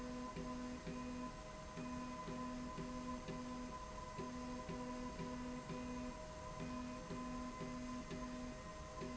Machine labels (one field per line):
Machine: slide rail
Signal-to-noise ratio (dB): 6 dB